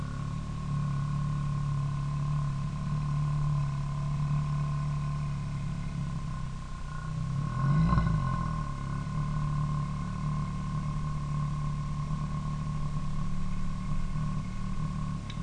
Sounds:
accelerating, engine

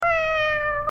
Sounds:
pets, meow, cat, animal

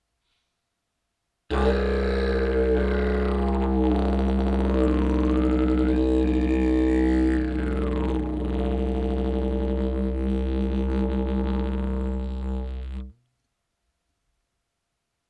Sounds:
music, musical instrument

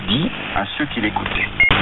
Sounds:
speech, man speaking, human voice

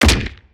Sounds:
gunfire, explosion

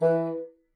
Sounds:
musical instrument, wind instrument, music

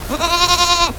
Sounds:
livestock, animal

